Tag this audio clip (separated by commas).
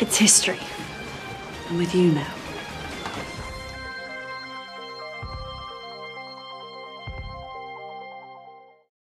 Music, Speech